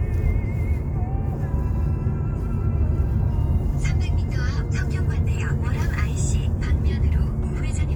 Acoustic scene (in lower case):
car